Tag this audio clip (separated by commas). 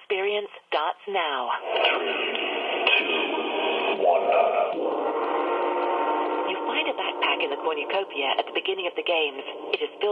Music, inside a small room, Speech